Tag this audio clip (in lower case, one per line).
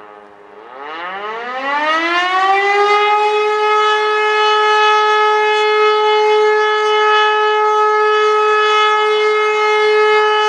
siren